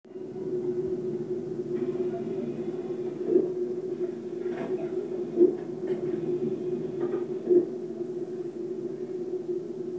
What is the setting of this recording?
subway train